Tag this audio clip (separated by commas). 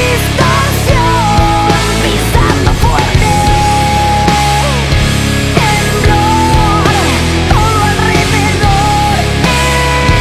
Music